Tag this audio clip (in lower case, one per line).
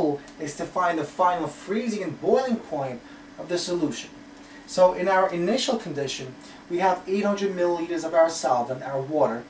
speech